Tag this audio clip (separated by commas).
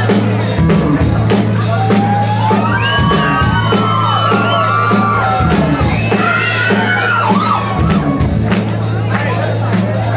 Speech, Music